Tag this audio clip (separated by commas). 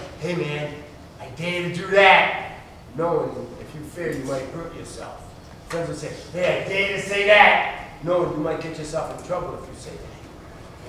Speech